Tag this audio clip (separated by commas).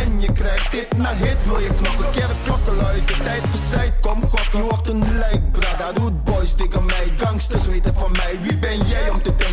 Hip hop music, Music, Reggae